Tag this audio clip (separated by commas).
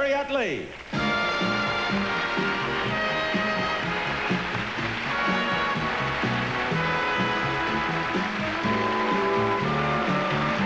Music, Speech